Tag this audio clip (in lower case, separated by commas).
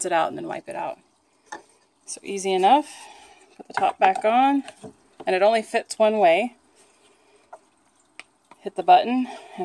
inside a small room, speech